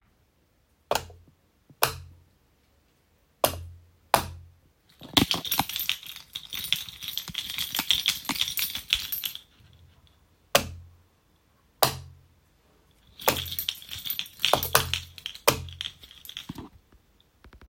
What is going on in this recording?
The person approaches a wall switch and toggles the light switch a few times, producing distinct clicks. The keychain sound continues lightly in the background.